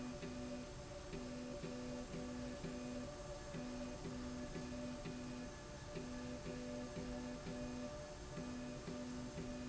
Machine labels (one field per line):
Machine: slide rail